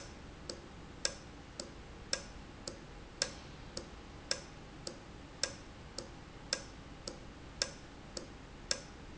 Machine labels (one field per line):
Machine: valve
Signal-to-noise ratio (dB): 6 dB